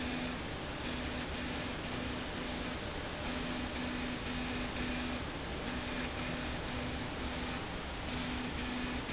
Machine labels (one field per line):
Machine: slide rail